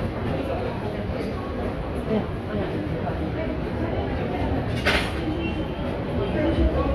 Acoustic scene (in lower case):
subway station